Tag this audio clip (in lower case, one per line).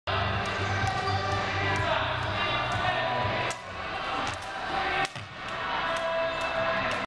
speech
music